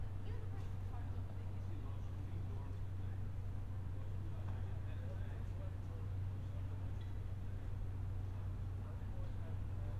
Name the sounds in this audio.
person or small group talking